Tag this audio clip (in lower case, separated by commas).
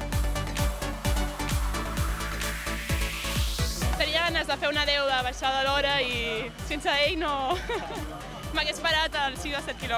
music, speech, outside, urban or man-made